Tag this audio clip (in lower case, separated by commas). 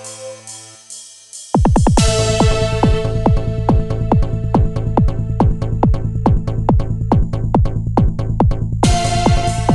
music